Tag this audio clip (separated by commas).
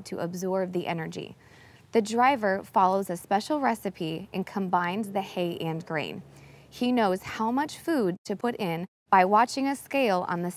Speech